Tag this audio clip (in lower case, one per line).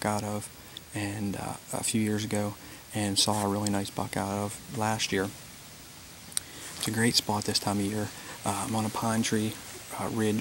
speech